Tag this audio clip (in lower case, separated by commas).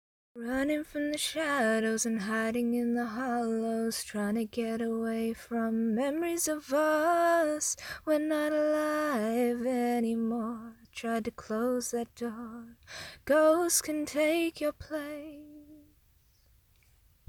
human voice, female singing, singing